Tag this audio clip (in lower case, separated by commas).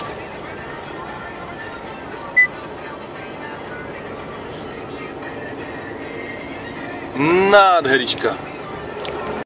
vehicle, speech, music, car